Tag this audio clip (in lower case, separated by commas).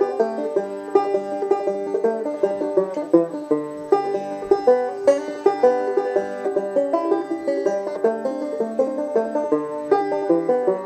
music